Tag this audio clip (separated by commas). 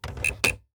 home sounds, Typewriter, Typing